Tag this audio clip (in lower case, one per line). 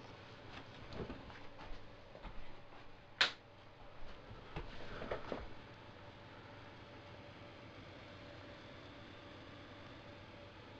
inside a small room